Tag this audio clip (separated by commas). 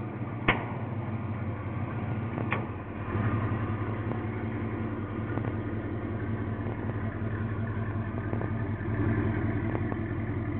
Vehicle